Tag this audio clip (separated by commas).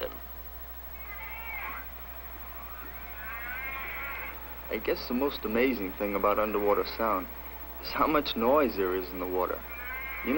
Speech